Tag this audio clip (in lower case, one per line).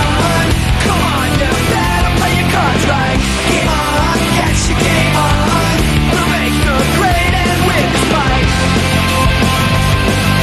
background music
music